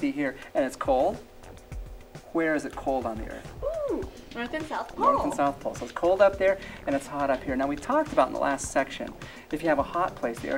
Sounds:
speech, music

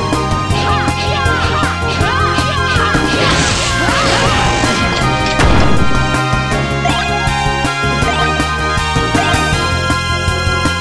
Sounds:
music

